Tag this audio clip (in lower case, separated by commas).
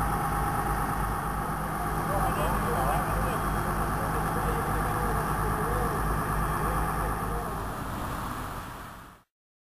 speech, vehicle